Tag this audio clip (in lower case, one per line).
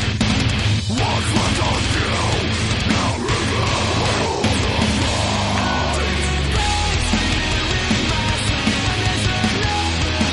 music